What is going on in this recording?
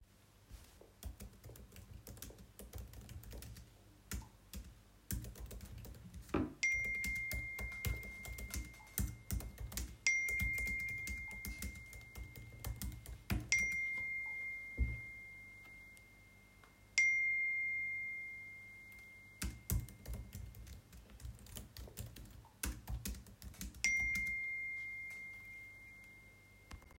I was typing and got notifocations while typing. I then stopped to look who it was and continued typing.